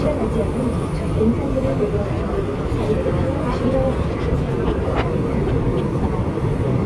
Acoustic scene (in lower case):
subway train